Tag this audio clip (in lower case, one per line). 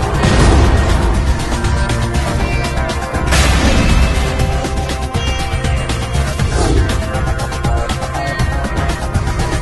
music
sound effect